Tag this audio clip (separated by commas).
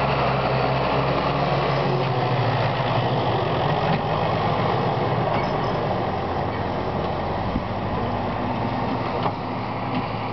outside, rural or natural, Vehicle